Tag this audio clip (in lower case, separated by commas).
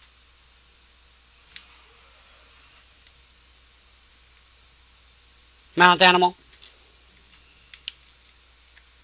narration